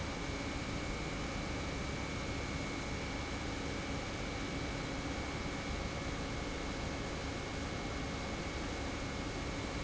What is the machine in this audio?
pump